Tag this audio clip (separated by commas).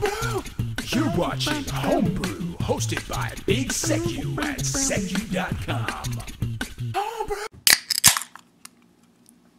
Music, inside a small room, Speech